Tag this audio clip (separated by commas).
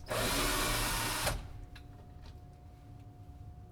Tools